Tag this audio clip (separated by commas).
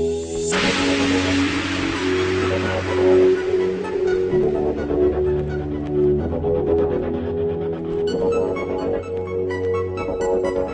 Music, Theme music